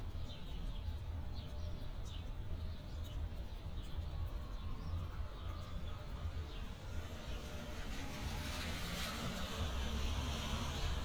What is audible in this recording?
background noise